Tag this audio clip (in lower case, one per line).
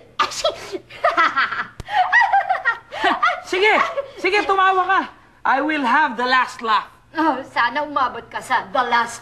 speech